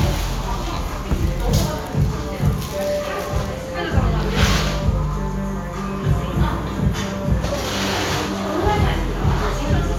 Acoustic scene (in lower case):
cafe